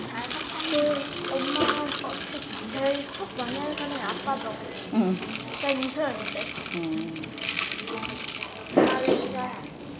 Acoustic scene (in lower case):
cafe